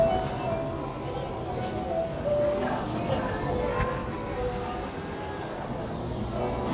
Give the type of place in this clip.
restaurant